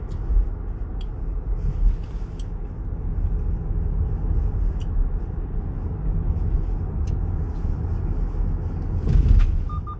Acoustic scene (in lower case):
car